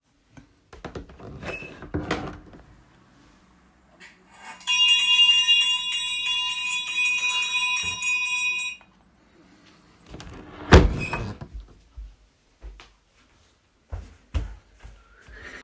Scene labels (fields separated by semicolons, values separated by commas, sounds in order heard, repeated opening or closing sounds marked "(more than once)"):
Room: living room; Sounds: window (more than once), bell ringing